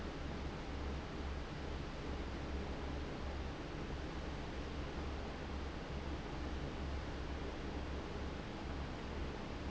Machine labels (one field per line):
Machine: fan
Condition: abnormal